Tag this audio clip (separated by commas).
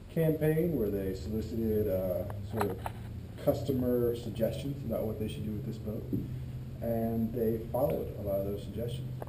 Speech